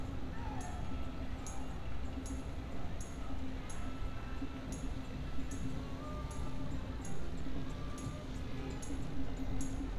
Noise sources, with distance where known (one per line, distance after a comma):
engine of unclear size, far
music from a fixed source